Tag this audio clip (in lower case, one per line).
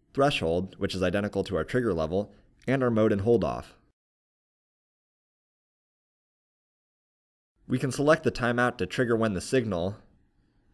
speech